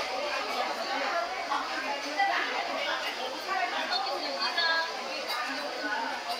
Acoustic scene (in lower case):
restaurant